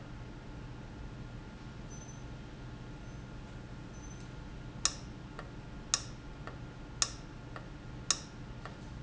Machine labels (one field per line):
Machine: valve